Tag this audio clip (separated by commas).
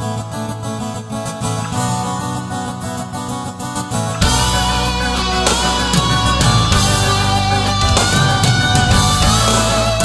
Music